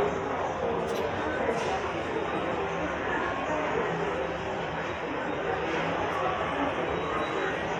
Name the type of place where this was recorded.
subway station